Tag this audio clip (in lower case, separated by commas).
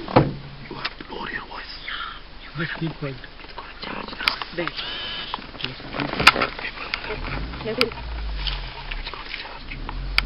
speech